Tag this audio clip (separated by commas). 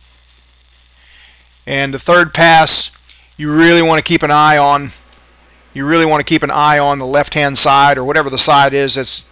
arc welding